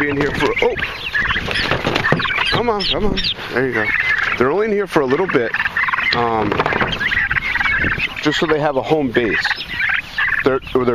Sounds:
fowl

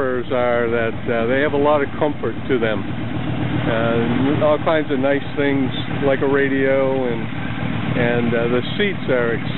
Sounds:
speech

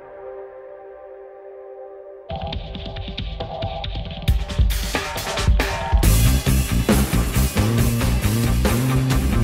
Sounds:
music

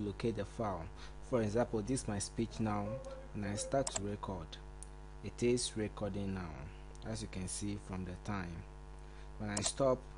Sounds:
speech

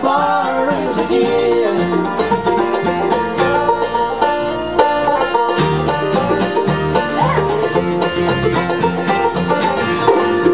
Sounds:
plucked string instrument, playing banjo, music, country, banjo, bluegrass, musical instrument, singing

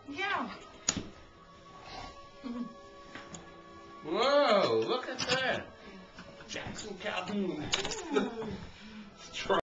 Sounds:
speech

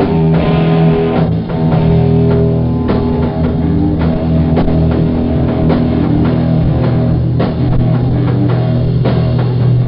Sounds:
guitar, psychedelic rock, music, rock music, musical instrument

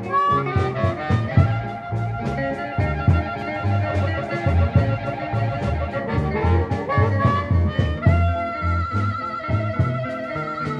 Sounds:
music

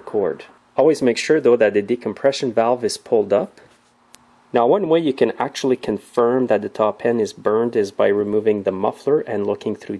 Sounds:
speech

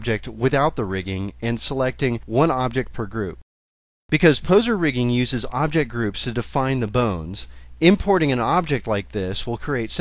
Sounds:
speech

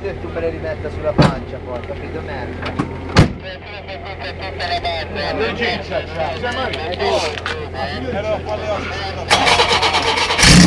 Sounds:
speech

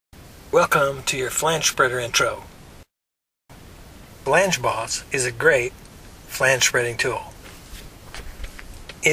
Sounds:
speech

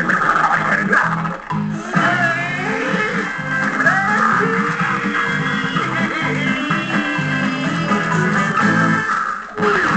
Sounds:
music

